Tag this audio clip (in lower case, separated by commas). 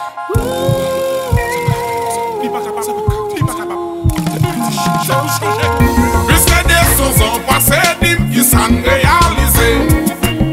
blues, music